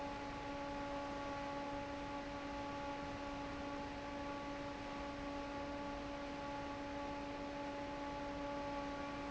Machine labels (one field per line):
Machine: fan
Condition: normal